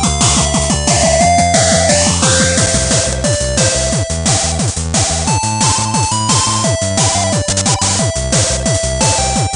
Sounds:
Music

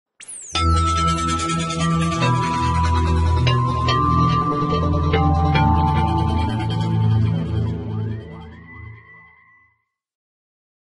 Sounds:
Music

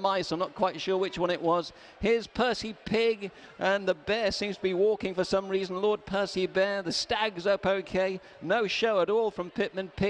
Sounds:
Speech

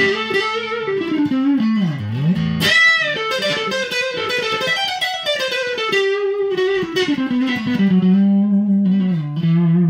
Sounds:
Guitar, Music, Plucked string instrument, Musical instrument, Tapping (guitar technique), Electric guitar

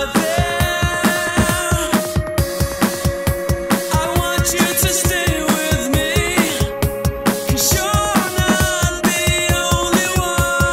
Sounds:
Drum and bass, Music

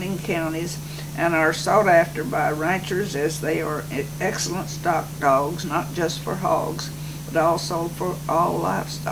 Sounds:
Speech

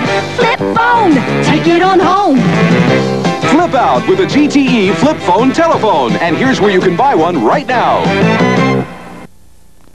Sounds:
Music, Speech

